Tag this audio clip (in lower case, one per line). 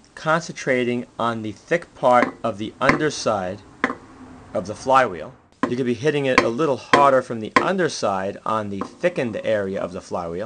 speech
tools